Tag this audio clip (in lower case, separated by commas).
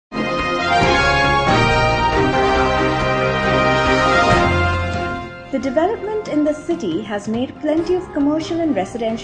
theme music, speech